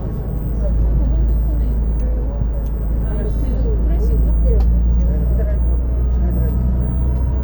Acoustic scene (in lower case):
bus